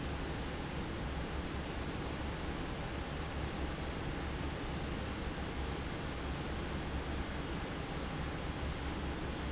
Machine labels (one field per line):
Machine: fan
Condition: normal